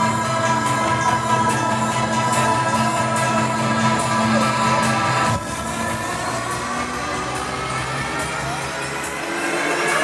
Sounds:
Music

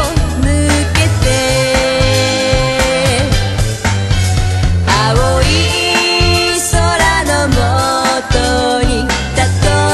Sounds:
Music

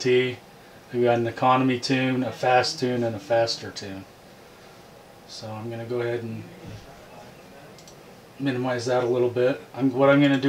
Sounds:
Speech

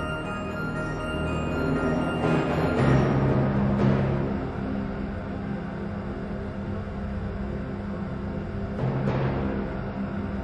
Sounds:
Music

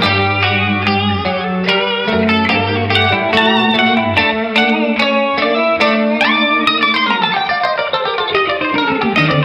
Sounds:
Electric guitar, Guitar, Plucked string instrument, Music, Musical instrument, Strum

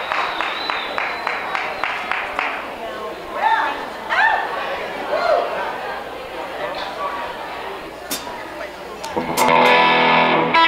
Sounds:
Speech, Music

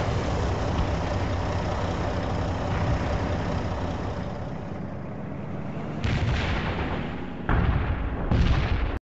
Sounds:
Artillery fire

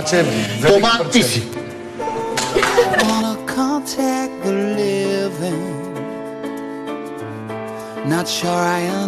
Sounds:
Speech, Music

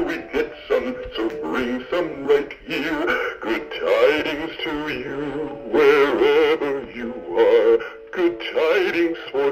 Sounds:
Male singing, Synthetic singing, Music

